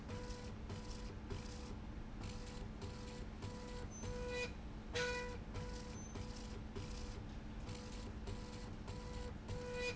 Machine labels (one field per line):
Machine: slide rail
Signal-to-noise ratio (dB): 6 dB